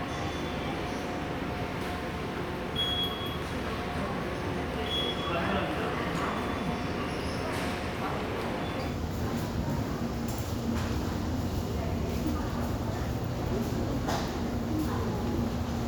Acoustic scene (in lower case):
subway station